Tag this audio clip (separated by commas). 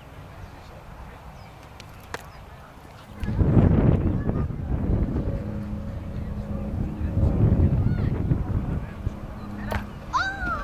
Speech